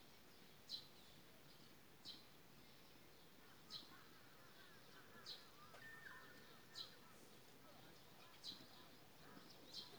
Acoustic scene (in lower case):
park